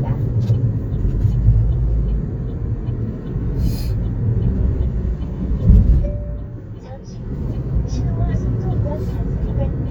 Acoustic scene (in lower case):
car